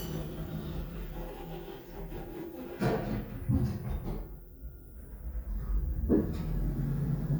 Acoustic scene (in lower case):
elevator